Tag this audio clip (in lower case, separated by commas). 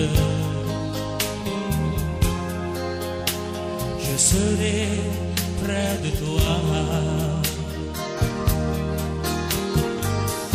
music